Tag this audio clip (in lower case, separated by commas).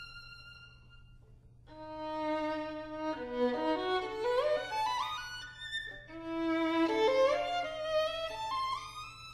music, musical instrument, violin